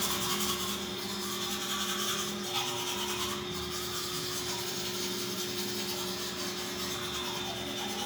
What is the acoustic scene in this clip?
restroom